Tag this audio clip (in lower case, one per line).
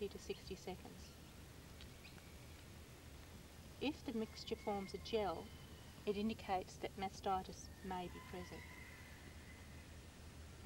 speech